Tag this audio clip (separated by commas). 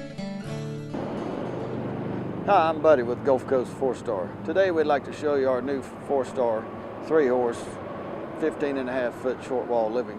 Music, Speech